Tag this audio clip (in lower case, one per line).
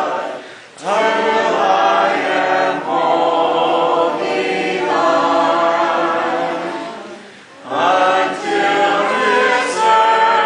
a capella
singing
chant